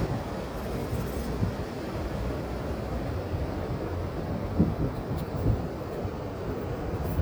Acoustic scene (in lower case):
park